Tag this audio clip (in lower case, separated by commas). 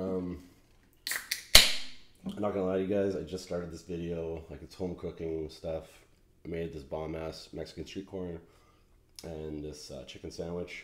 speech